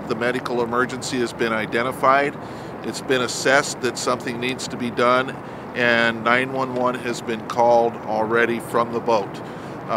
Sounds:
speech

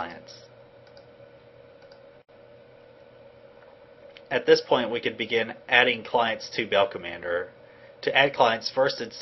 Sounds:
speech

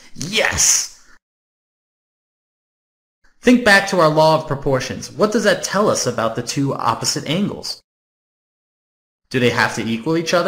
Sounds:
speech

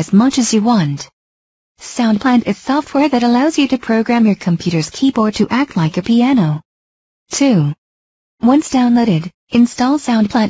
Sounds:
speech

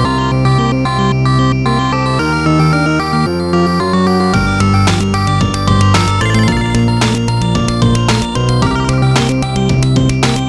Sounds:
music

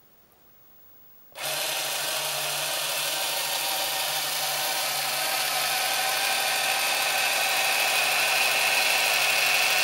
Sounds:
printer

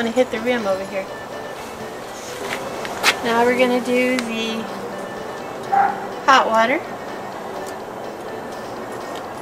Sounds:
speech
music

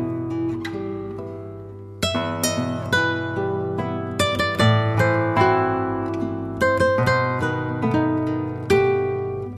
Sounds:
pizzicato

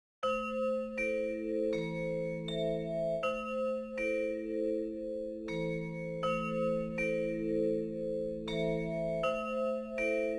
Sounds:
glockenspiel
mallet percussion
marimba

